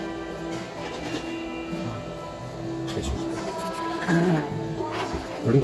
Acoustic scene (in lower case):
cafe